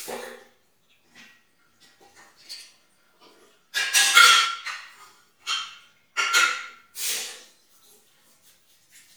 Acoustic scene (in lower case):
restroom